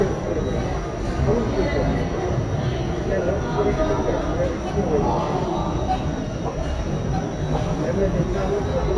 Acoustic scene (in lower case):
subway station